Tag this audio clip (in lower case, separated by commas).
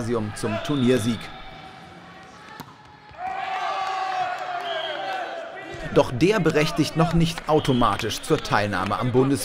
playing volleyball